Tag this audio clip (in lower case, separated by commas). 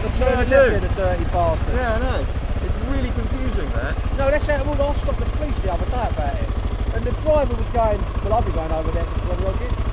speech